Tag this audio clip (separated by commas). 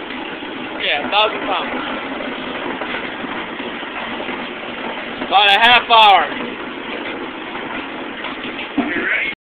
Speech